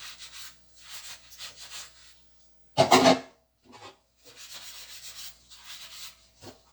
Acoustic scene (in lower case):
kitchen